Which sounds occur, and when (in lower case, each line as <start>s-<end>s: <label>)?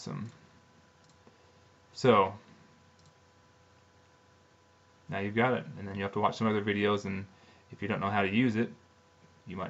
0.0s-0.3s: man speaking
0.0s-9.6s: mechanisms
0.2s-0.3s: clicking
1.0s-1.1s: clicking
1.2s-1.3s: generic impact sounds
1.9s-2.4s: man speaking
2.5s-2.6s: generic impact sounds
3.0s-3.1s: clicking
3.7s-3.8s: clicking
4.0s-4.2s: clicking
5.1s-5.7s: man speaking
5.8s-7.3s: man speaking
7.3s-7.7s: breathing
7.7s-8.7s: man speaking